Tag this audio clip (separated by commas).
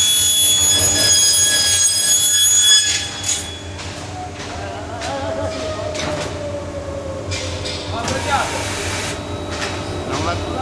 Speech